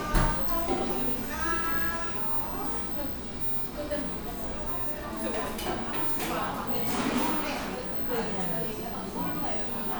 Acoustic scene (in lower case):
cafe